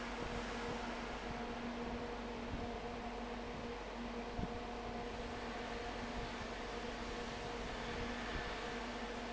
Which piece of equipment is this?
fan